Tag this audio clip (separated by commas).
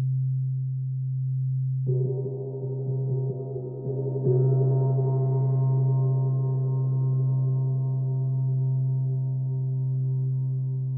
Gong